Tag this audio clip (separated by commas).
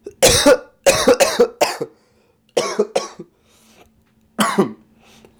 Respiratory sounds, Cough